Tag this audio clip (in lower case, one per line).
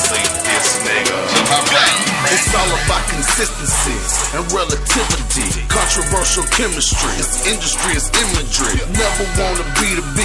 music